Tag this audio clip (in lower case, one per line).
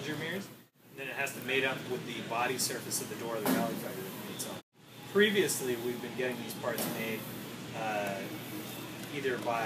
speech